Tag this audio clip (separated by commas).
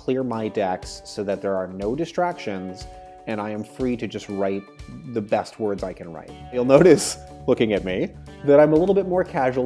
Music, Speech